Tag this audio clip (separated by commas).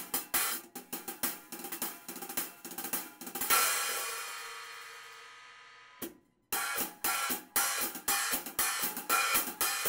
Hi-hat, Cymbal, playing cymbal